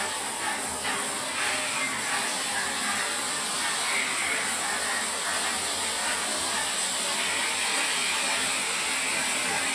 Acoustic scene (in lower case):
restroom